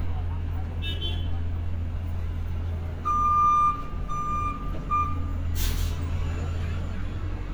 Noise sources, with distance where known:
large-sounding engine, near; car horn, near; reverse beeper, near

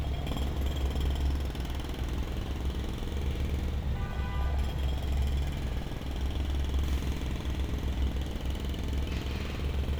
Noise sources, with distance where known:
jackhammer, far; car horn

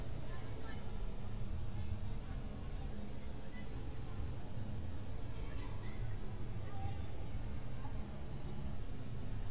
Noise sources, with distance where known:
person or small group talking, far

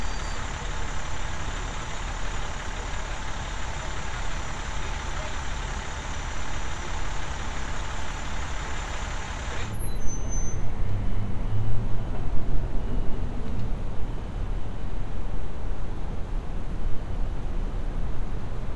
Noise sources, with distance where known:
large-sounding engine

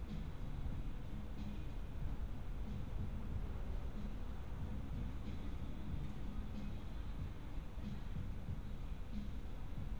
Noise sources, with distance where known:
music from a fixed source, far

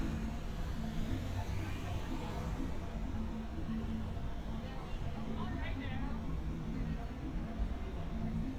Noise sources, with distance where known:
medium-sounding engine; music from a fixed source, far; person or small group talking

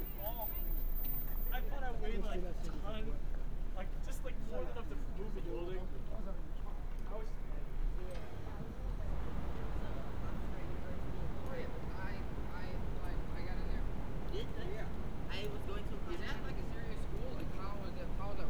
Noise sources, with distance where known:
person or small group talking

